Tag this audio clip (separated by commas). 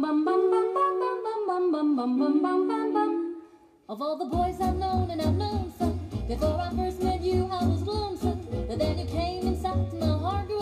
inside a large room or hall, Music